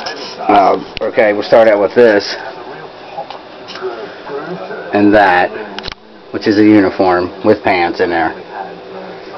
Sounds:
speech

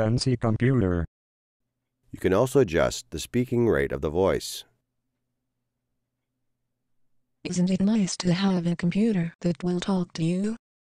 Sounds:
speech

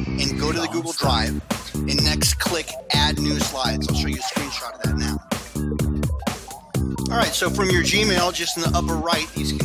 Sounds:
speech, background music, music

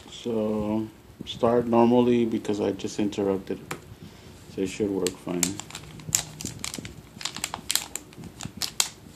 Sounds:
inside a small room, speech

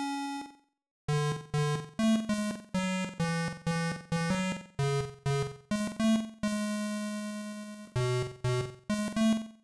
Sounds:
soundtrack music, music

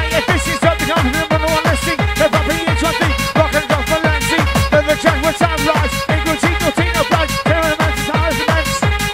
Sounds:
techno, music, electronic music

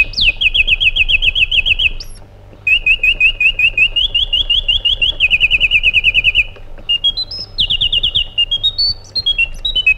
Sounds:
bird squawking

